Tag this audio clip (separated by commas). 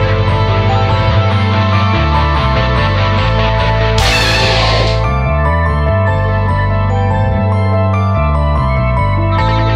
Music